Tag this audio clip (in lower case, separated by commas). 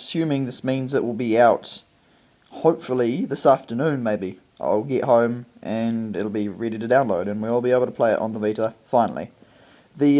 speech